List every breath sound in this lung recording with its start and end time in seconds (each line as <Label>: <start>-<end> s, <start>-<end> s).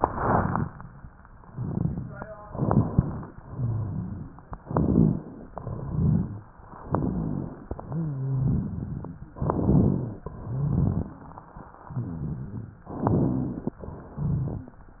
Inhalation: 2.50-3.32 s, 4.64-5.47 s, 6.90-7.67 s, 9.40-10.19 s, 11.92-12.85 s, 13.88-14.74 s
Exhalation: 1.45-2.35 s, 3.44-4.27 s, 5.55-6.47 s, 8.39-9.34 s, 10.33-11.18 s, 12.93-13.78 s
Rhonchi: 1.45-2.35 s, 3.44-4.27 s, 5.55-6.47 s, 6.90-7.67 s, 7.88-8.45 s, 11.92-12.85 s
Crackles: 2.50-3.32 s, 4.70-5.29 s, 8.39-9.34 s, 9.40-10.19 s, 10.33-11.18 s, 12.93-13.78 s, 14.11-14.74 s